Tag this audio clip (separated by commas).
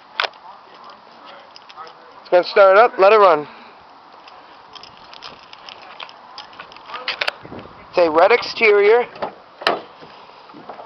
Speech